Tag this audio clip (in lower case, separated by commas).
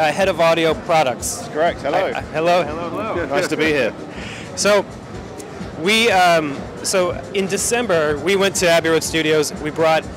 music, speech